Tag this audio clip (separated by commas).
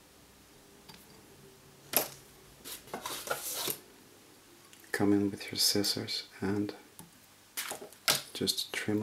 Speech